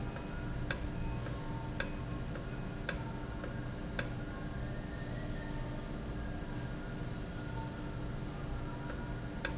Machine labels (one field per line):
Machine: valve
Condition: normal